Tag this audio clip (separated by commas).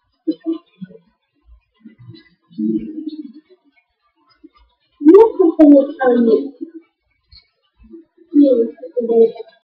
Speech